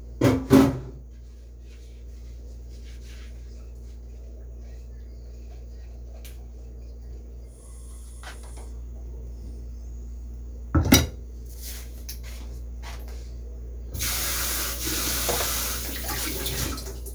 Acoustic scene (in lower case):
kitchen